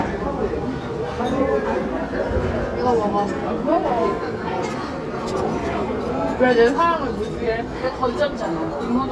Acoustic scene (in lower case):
restaurant